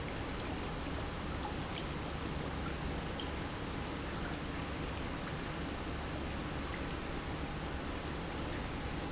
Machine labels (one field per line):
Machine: pump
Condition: normal